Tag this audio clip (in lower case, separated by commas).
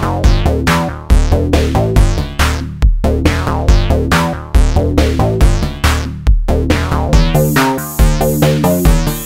drum machine, music, playing synthesizer, synthesizer, musical instrument